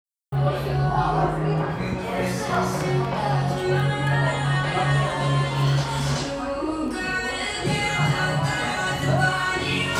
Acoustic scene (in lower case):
cafe